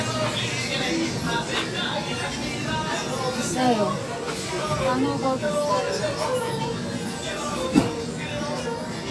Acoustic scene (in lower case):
crowded indoor space